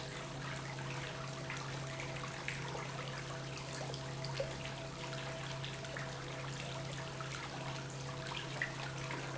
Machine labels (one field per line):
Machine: pump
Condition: normal